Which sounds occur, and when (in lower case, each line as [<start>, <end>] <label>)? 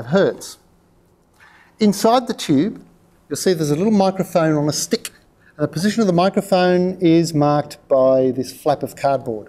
[0.00, 9.45] background noise
[0.01, 0.56] male speech
[1.35, 1.66] breathing
[1.76, 2.73] male speech
[3.30, 5.09] male speech
[5.33, 5.53] breathing
[5.56, 7.74] male speech
[7.87, 9.43] male speech